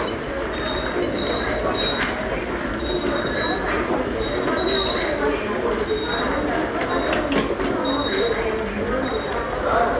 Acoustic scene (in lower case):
subway station